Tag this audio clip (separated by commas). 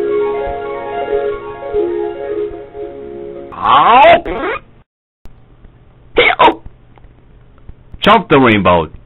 Music, Speech